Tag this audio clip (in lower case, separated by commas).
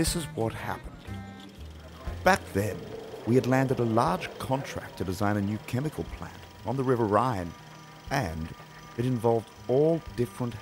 speech